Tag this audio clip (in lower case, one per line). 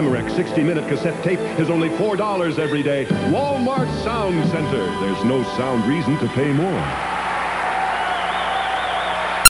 music
speech